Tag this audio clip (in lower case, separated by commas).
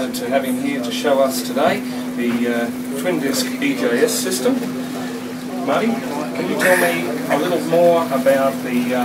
speech, vehicle, boat, speedboat